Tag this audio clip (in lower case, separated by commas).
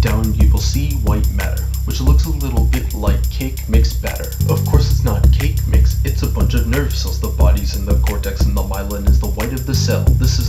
music, rapping